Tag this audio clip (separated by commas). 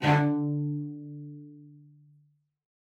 Music, Bowed string instrument, Musical instrument